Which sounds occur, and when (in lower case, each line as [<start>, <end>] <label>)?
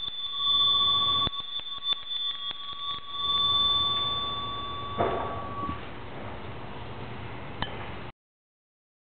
[0.00, 0.12] generic impact sounds
[0.00, 5.76] bell
[0.00, 8.09] mechanisms
[1.21, 1.37] generic impact sounds
[1.52, 1.73] generic impact sounds
[1.88, 2.14] generic impact sounds
[2.28, 2.53] generic impact sounds
[2.67, 3.43] generic impact sounds
[3.88, 4.05] generic impact sounds
[4.95, 5.32] generic impact sounds
[5.60, 5.80] generic impact sounds
[7.55, 7.67] tick